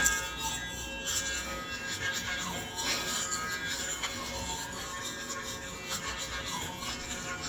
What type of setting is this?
restroom